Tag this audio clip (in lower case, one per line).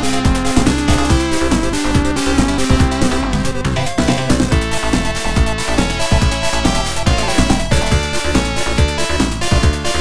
music